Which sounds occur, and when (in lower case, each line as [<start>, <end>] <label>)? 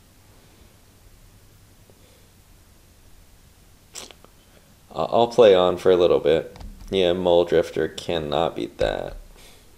[0.00, 9.75] mechanisms
[1.99, 2.36] breathing
[3.90, 4.11] human sounds
[4.13, 4.29] clicking
[4.29, 4.58] breathing
[4.92, 6.53] man speaking
[6.56, 6.61] clicking
[6.79, 6.88] clicking
[6.90, 9.17] man speaking
[9.31, 9.65] breathing